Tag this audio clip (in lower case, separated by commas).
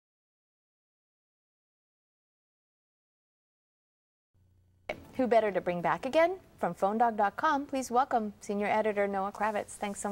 speech, inside a small room, silence